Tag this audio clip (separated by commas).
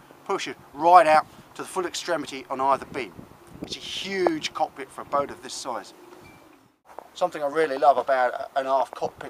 Speech